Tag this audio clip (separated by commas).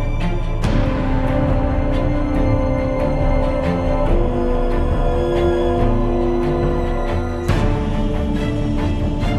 Music, Scary music